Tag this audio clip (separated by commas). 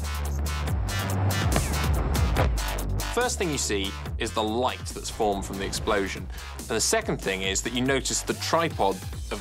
Speech, Music